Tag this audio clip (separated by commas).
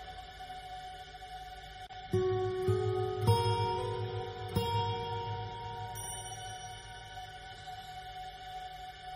Music